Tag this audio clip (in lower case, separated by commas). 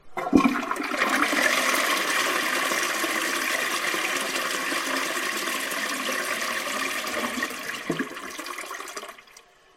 toilet flush, home sounds